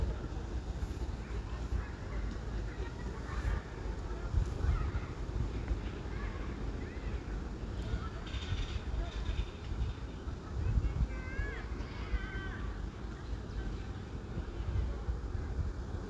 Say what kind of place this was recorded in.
residential area